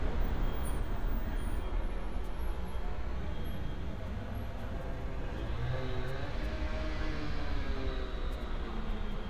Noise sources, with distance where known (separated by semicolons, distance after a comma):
engine of unclear size